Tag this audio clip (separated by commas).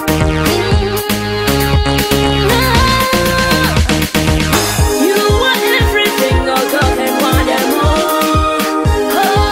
Pop music, Music